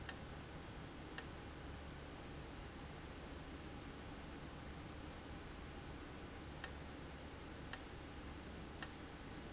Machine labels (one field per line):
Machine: valve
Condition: abnormal